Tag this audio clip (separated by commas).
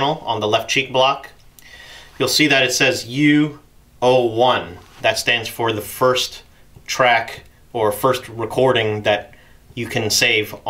Speech